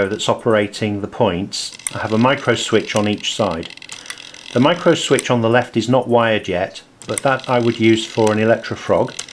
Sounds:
speech

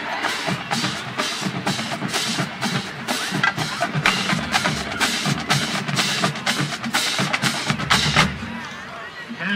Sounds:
speech
music

